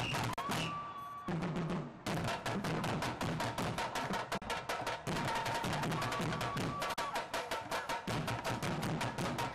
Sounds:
Percussion, Wood block, Music

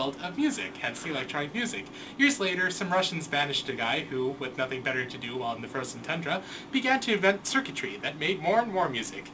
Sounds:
Speech

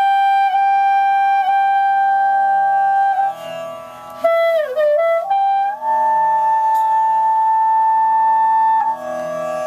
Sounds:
Musical instrument, Music, inside a small room, Clarinet, playing clarinet, Wind instrument

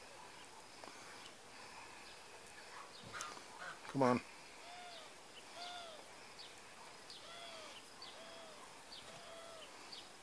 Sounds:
Speech, Domestic animals, Animal

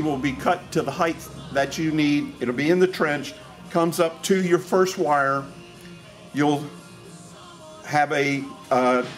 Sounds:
Speech, Music

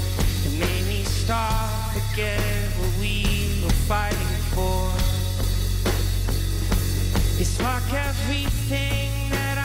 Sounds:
Grunge, Music, Singing

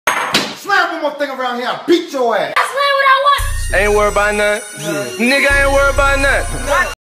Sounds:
Music, Door, Slam, Speech

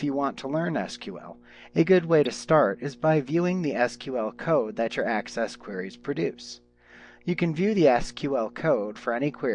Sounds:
Speech

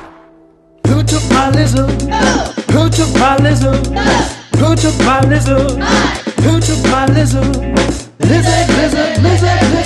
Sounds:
Music, Funny music

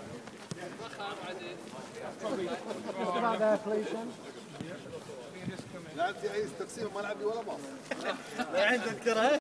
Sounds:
Speech, Walk

